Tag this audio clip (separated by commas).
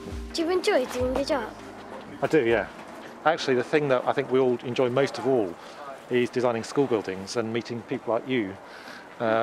Speech, outside, rural or natural